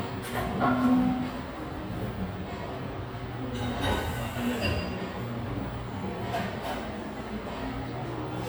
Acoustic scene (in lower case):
cafe